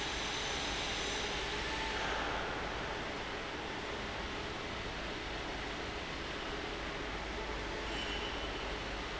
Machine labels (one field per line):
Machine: fan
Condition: abnormal